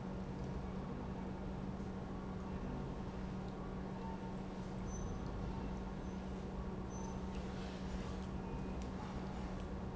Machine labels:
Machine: pump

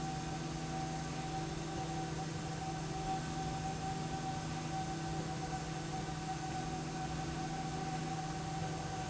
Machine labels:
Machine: slide rail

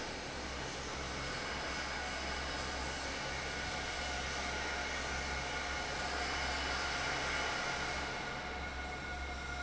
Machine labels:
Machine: fan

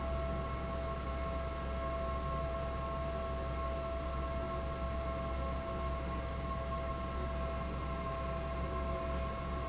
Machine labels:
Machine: fan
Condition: abnormal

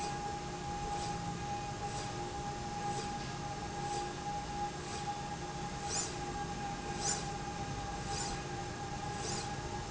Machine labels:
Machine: slide rail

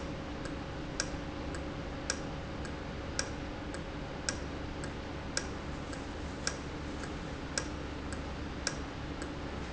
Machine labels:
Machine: valve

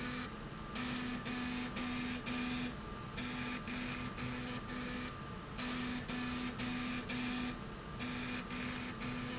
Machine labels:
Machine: slide rail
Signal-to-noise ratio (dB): 0 dB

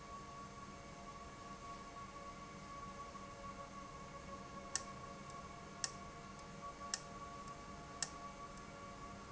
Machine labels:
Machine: valve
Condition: abnormal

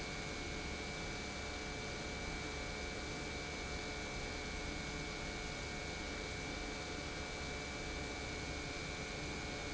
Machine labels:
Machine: pump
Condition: normal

